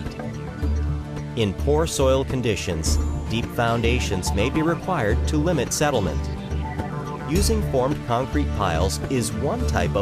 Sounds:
music, speech

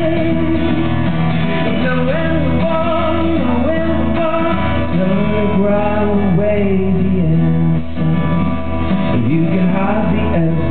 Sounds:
music

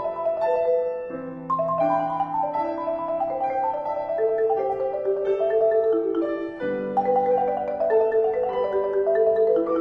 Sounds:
music, percussion, piano, xylophone, musical instrument, keyboard (musical)

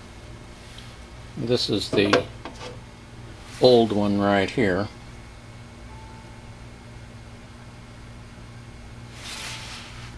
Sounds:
speech

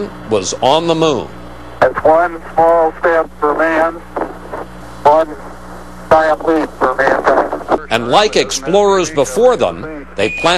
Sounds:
speech

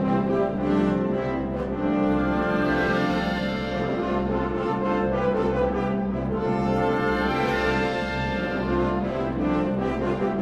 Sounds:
orchestra, music

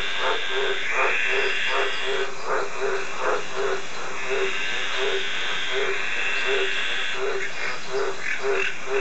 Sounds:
croak, frog

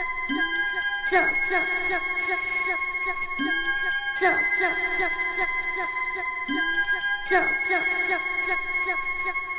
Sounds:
keys jangling, music

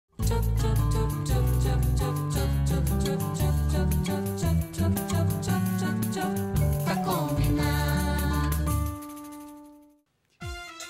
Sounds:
music, music for children

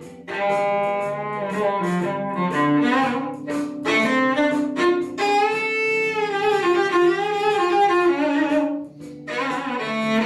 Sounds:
playing cello

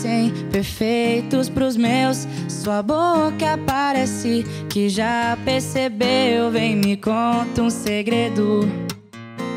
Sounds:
people humming

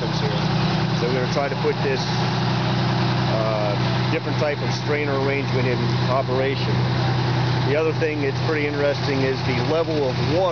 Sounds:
speech, vehicle

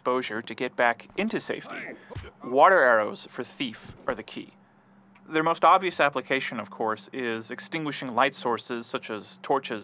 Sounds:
speech

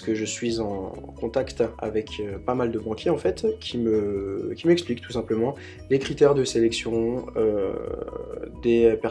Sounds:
speech, music

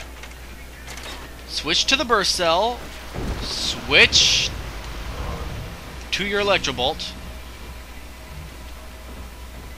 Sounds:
speech, music

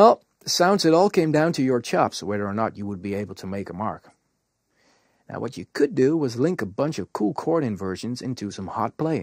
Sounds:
narration, speech

